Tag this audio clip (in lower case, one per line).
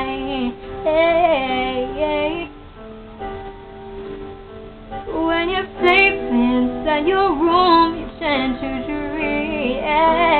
female singing
music